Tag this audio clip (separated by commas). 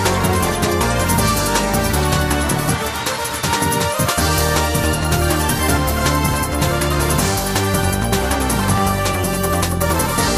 Music, Video game music